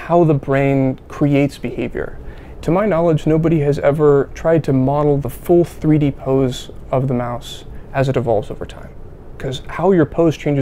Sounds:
Speech

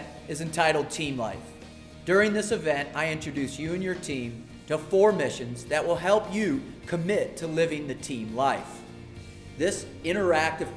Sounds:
monologue, man speaking, Music, Speech

